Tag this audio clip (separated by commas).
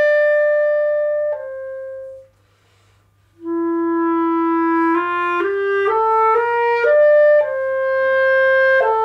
Clarinet, Music, playing clarinet, Wind instrument